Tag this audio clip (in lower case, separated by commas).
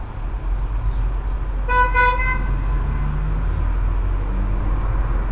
alarm, vehicle, honking, motor vehicle (road), car, traffic noise